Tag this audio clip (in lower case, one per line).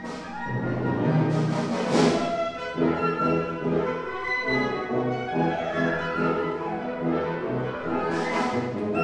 music